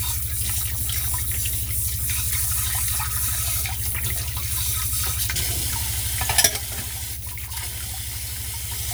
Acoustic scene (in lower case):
kitchen